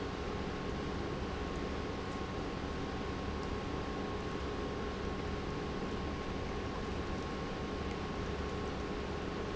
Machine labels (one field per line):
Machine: pump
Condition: normal